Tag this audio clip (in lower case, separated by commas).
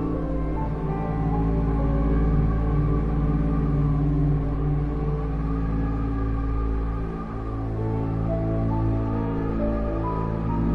music